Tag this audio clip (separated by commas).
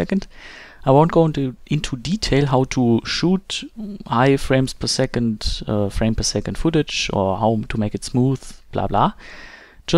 Speech